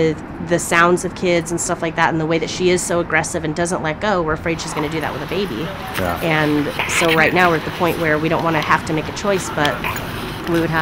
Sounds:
Speech

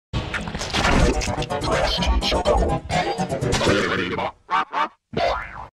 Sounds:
Speech, Music

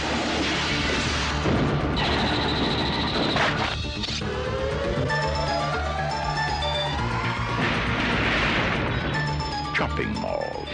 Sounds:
Music

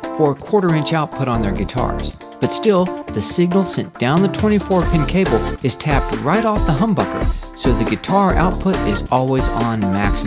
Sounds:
Guitar, Speech, Music, Musical instrument

